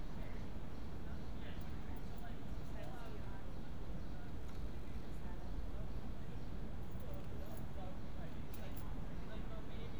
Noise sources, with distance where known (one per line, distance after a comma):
person or small group talking